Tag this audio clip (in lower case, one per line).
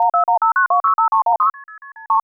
alarm
telephone